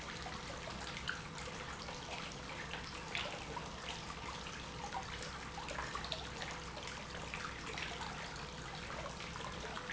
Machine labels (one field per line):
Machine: pump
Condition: normal